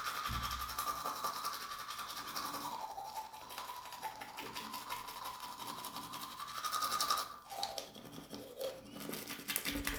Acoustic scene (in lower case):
restroom